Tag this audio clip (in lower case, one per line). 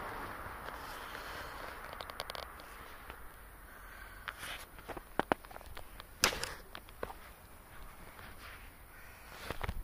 reversing beeps